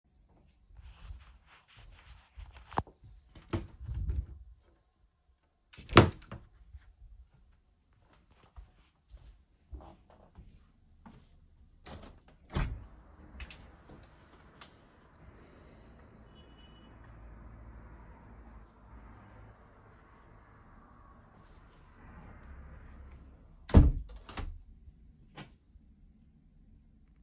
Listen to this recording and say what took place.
opening a wardrobe, then closing it.walking to the window. opening a window, then closing it